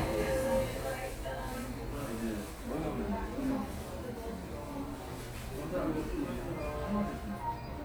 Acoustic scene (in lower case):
cafe